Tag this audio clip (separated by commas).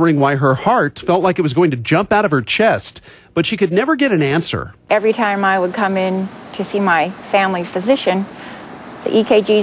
Speech